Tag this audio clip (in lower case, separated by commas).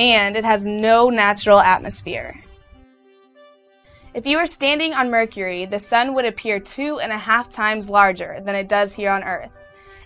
music, speech